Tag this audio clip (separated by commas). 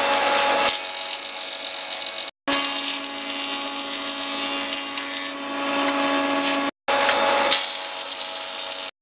planing timber